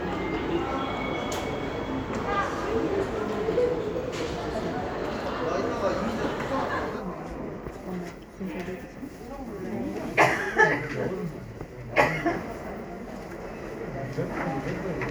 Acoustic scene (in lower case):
crowded indoor space